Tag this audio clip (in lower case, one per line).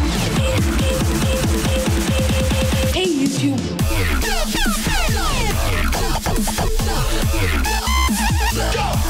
electronic music
dubstep
music
speech